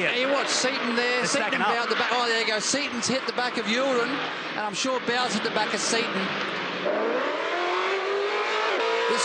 Two adults males speak and a vehicle motor accelerates